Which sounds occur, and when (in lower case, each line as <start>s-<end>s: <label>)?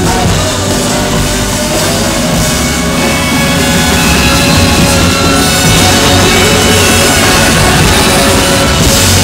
0.0s-2.3s: singing
0.0s-9.2s: crowd
0.0s-9.2s: music
5.8s-8.1s: singing